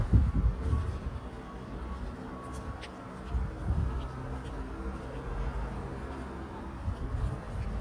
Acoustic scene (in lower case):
residential area